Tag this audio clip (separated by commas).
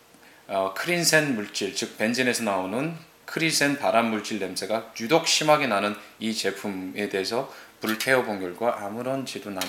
Speech